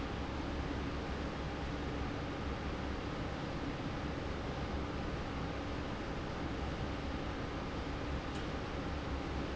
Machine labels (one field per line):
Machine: fan